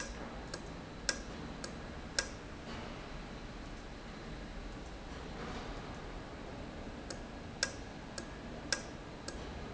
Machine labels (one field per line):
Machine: valve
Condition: normal